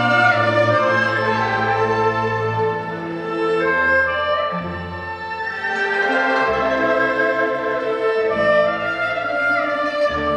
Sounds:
playing erhu

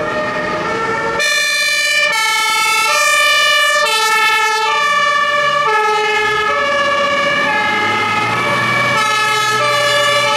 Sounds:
fire truck siren

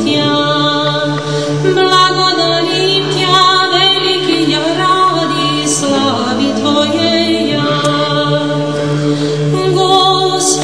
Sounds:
Music

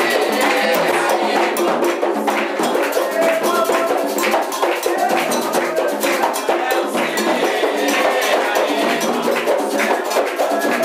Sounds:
Music

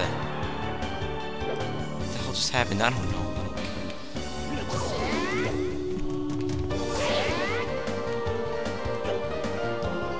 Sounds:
Music, Speech

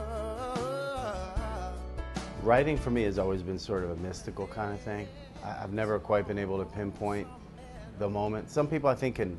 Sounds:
Speech, Music

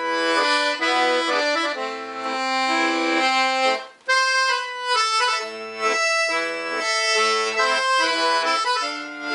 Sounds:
Musical instrument, Classical music, Accordion, Music, Piano

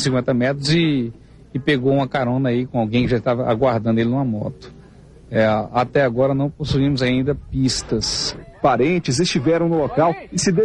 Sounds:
Speech

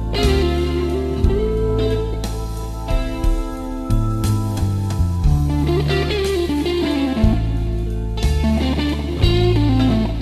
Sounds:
Music, Pop music

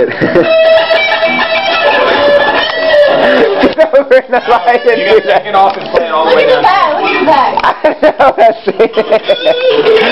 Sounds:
Music, Musical instrument, Plucked string instrument, Speech, Acoustic guitar, Guitar

